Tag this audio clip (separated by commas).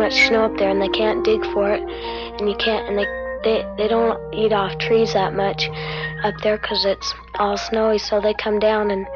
Speech, Music